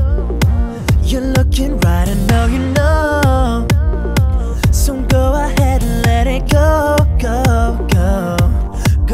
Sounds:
Singing, Music

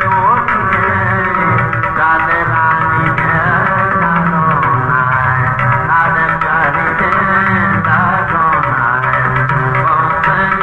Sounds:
Singing, inside a large room or hall, Music

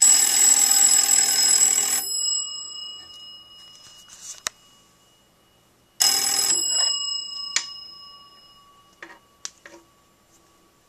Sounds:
Telephone

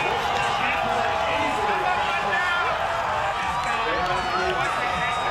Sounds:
Speech

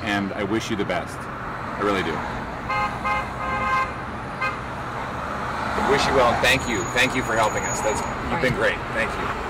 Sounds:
Car, Speech, outside, urban or man-made, Vehicle

